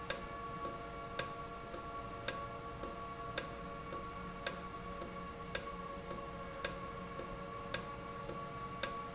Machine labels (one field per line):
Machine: valve